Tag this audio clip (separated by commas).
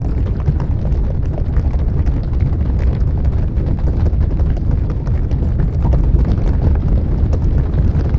Animal